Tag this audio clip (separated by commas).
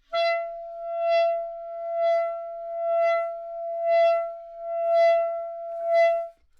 Music, Wind instrument, Musical instrument